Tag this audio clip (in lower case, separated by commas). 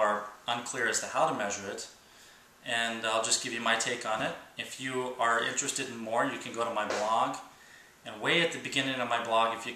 speech